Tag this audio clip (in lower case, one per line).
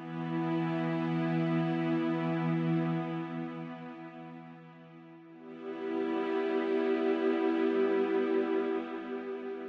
music